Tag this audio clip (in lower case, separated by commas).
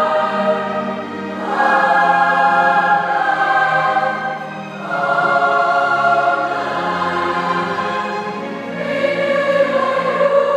music, singing, choir